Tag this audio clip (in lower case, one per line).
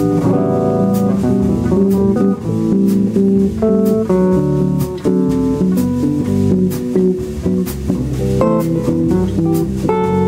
electric guitar
guitar
music
plucked string instrument
strum
musical instrument